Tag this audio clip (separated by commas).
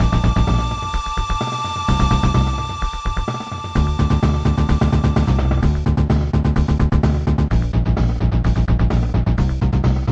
Music